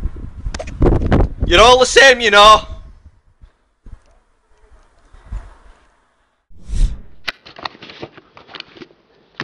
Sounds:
Speech

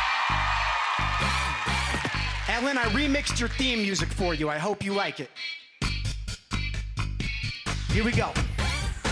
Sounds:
rapping

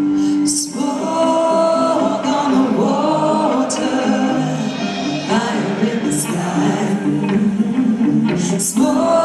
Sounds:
Music

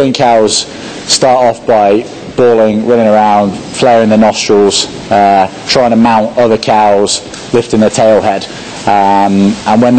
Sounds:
Speech

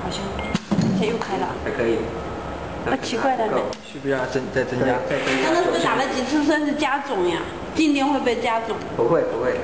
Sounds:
Speech

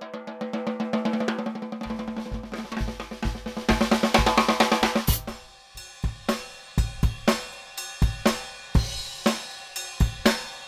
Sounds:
Bass drum, Music

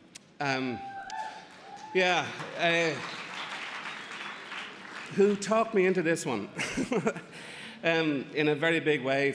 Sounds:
Speech

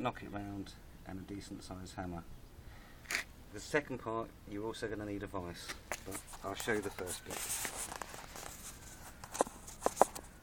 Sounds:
Speech

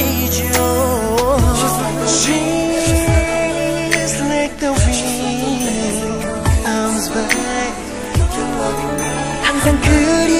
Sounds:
Singing, Music, Pop music

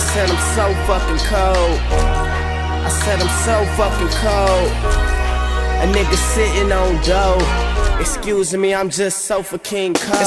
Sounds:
Music

